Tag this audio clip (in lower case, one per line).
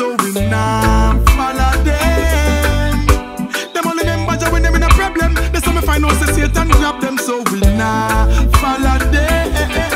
music
reggae
music of africa